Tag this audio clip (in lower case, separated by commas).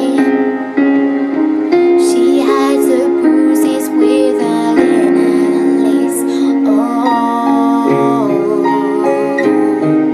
music, female singing